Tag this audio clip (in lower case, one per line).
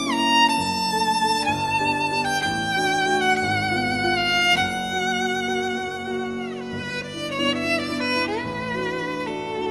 violin
music
musical instrument